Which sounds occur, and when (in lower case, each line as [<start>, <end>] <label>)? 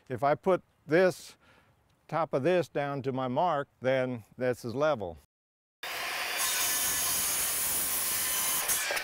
[0.00, 0.53] man speaking
[0.00, 5.23] background noise
[0.86, 1.29] man speaking
[1.35, 2.04] breathing
[2.05, 3.60] man speaking
[3.79, 5.13] man speaking
[5.78, 9.03] background noise
[5.80, 9.03] sawing